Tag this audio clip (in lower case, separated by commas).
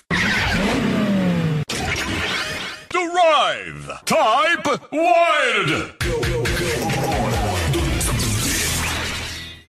music, speech